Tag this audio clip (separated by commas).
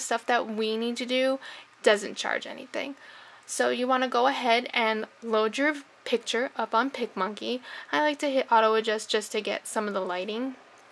Speech